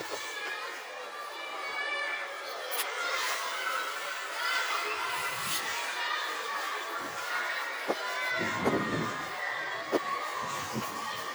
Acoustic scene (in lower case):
residential area